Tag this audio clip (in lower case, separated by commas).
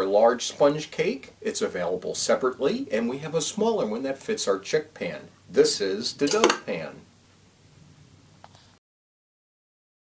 speech